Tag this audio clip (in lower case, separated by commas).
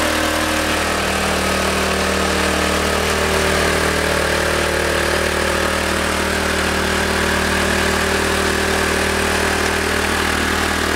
idling, engine, medium engine (mid frequency)